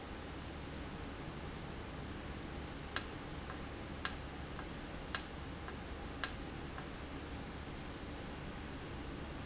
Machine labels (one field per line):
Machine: valve